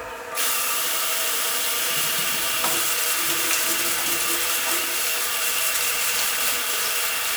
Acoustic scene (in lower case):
restroom